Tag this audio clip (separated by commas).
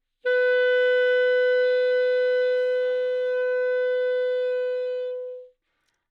Wind instrument, Musical instrument, Music